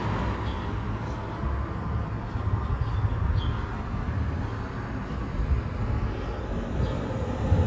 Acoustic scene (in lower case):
residential area